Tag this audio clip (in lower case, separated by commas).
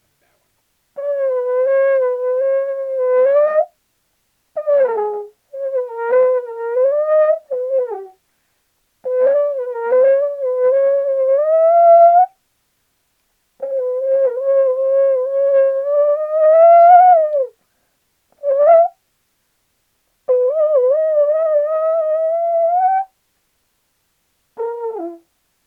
music, brass instrument, musical instrument